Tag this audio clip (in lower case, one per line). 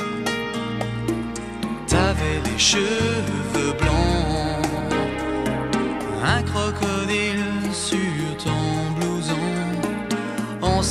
music